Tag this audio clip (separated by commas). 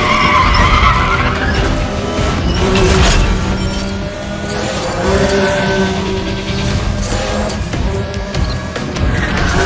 Music